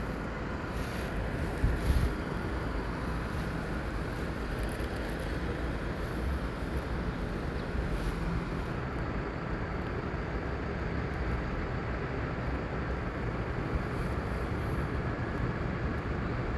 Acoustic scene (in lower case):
street